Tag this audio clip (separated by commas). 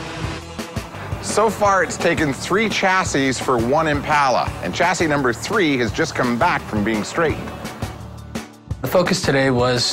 Music, Speech